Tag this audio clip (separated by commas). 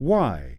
Speech, Human voice, man speaking